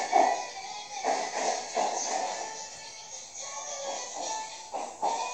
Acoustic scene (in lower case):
subway train